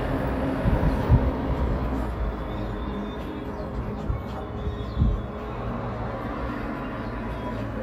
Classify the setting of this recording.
street